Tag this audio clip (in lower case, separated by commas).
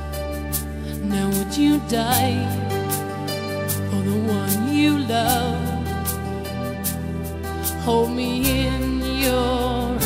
music, singing